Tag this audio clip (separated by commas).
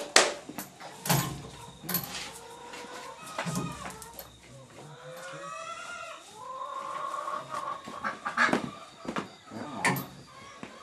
livestock